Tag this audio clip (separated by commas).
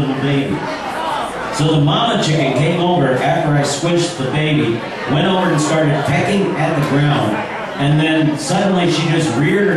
Speech